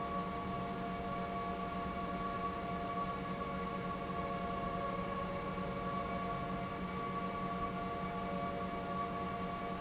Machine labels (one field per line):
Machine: pump